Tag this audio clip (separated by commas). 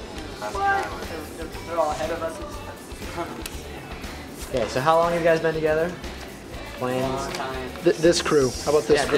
Speech, Music